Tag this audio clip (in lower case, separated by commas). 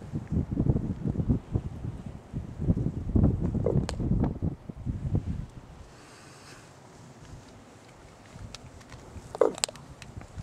bird, crow